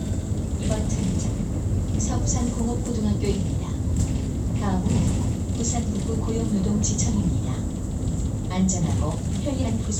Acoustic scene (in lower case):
bus